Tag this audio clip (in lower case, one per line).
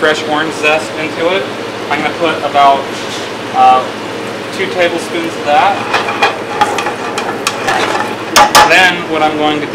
speech